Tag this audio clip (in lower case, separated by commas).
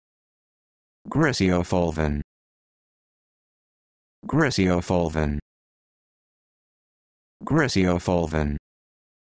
speech synthesizer